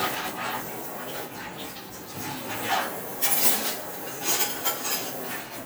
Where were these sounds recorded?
in a kitchen